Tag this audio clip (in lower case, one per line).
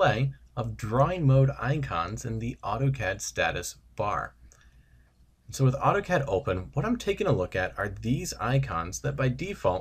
speech